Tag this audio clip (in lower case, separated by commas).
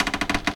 door, home sounds, cupboard open or close